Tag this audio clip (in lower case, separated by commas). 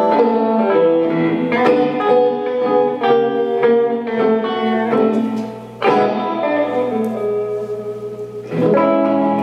blues, harmonic, guitar, musical instrument, music